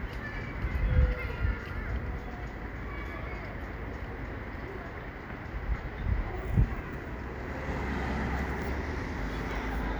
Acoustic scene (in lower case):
residential area